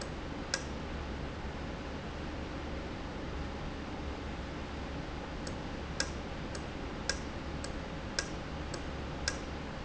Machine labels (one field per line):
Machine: valve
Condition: normal